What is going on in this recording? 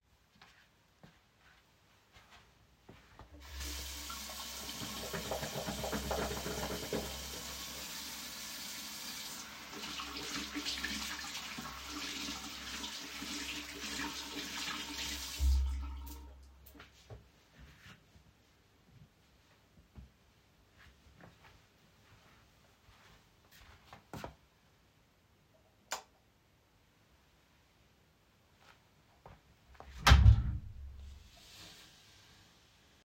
I turned the tap, uses hand soap, wash my hands, closes the tap, turns off the light, opens the door.